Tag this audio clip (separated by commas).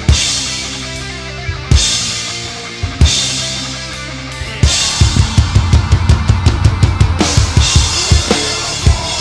Music